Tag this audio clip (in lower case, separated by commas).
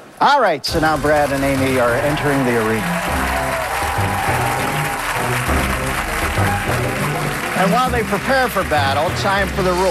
speech, music